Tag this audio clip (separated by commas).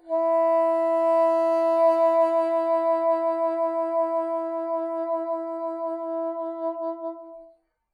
Musical instrument, Wind instrument, Music